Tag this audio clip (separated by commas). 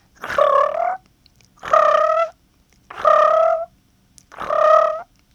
Animal